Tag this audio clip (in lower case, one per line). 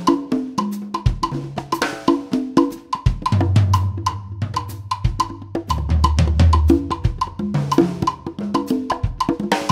music
percussion